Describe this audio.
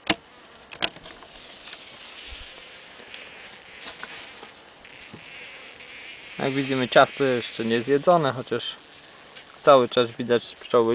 An insect is buzzing, rattling occurs, and an adult male speaks